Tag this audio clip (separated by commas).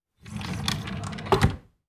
Domestic sounds, Drawer open or close